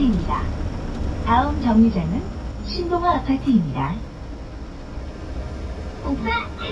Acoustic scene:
bus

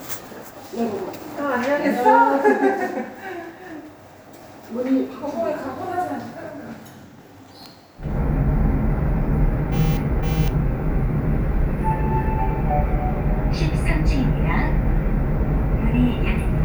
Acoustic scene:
elevator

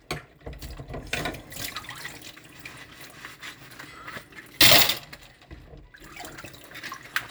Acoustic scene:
kitchen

